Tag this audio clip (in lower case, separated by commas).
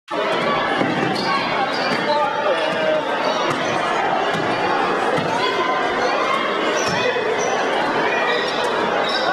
basketball bounce